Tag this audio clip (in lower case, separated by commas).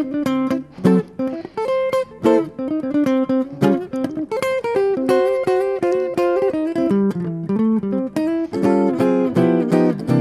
music, jazz, plucked string instrument, musical instrument, electric guitar, guitar, strum